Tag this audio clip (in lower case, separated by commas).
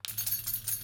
keys jangling, domestic sounds